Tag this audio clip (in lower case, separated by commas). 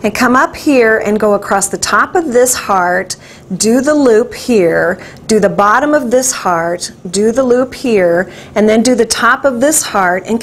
speech